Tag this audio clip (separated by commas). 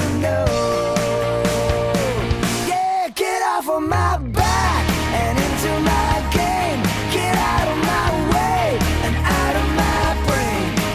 Music